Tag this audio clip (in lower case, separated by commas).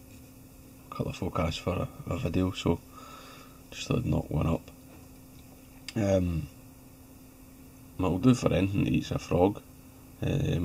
speech